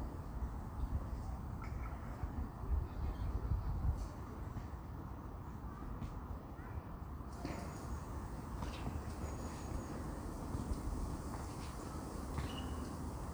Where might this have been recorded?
in a park